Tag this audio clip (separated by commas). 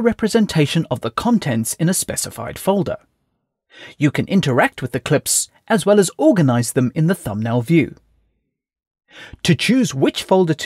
Speech